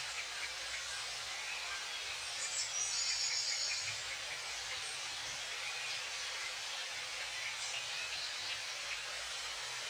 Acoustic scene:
park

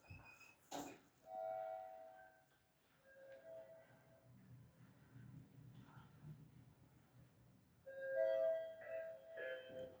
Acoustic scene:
elevator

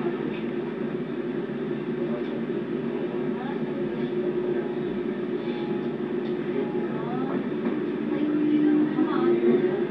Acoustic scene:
subway train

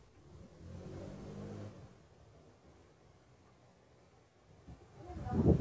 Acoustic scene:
residential area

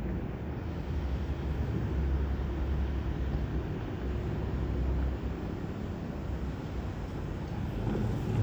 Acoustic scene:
residential area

